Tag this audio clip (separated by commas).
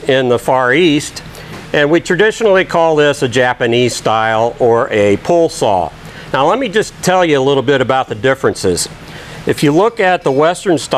Speech